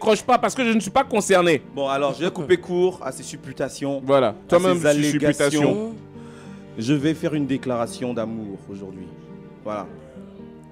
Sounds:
Music, Speech

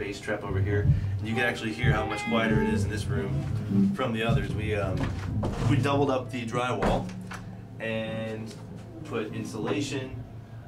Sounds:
Music, Speech

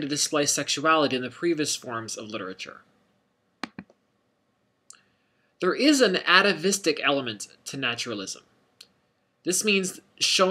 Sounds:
Speech

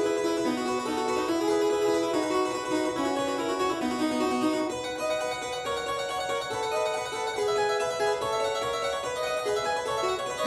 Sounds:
playing harpsichord, Harpsichord, Music

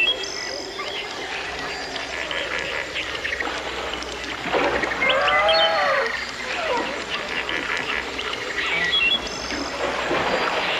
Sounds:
outside, rural or natural

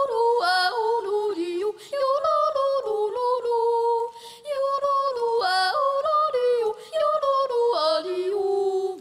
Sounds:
yodelling

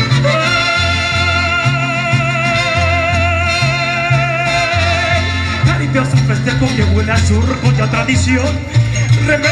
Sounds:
Singing, outside, urban or man-made, Music, Yodeling

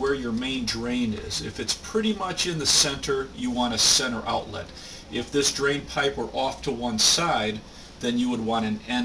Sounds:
Speech

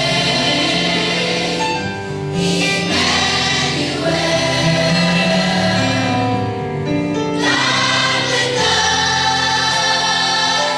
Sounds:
Choir, Music, Gospel music

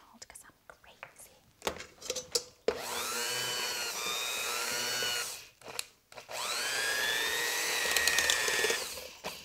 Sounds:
inside a small room, Speech

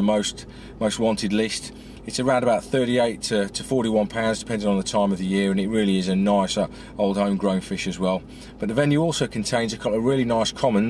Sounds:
Speech

